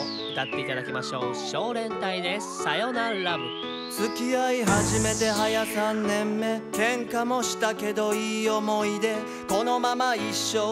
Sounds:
Music, Speech

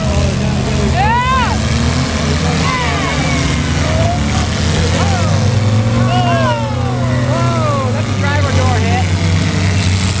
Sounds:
Motor vehicle (road), Speech, Car, Vehicle, Car passing by

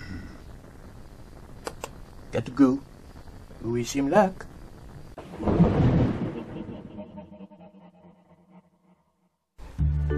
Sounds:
Speech, Music

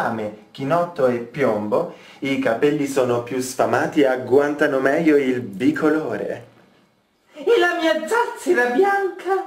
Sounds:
Speech

